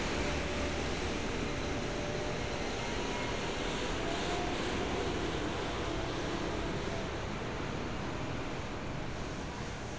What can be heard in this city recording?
engine of unclear size